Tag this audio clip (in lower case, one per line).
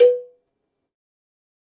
cowbell
bell